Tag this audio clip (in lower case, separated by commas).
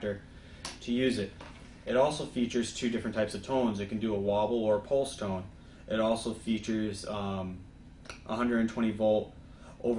speech